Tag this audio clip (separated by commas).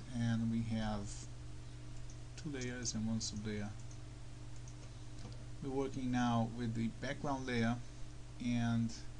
Speech